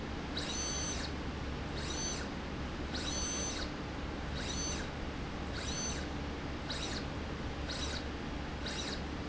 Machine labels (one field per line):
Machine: slide rail